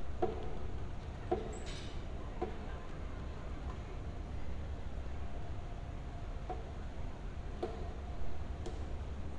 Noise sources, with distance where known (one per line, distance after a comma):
non-machinery impact